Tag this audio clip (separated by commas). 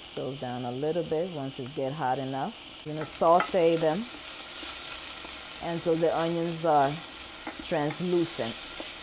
Frying (food), Sizzle, Stir